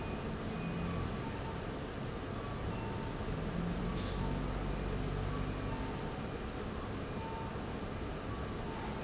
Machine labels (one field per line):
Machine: fan